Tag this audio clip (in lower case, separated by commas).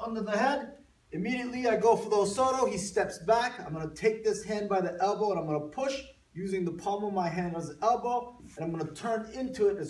speech